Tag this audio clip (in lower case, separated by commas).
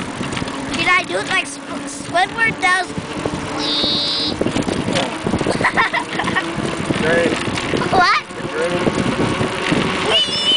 speech, vehicle, bicycle